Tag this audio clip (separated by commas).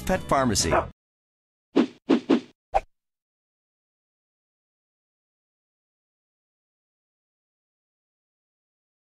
Bow-wow, Speech, Music